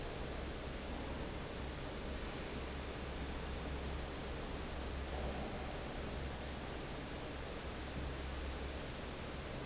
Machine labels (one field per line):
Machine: fan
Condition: normal